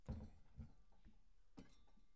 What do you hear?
metal cupboard opening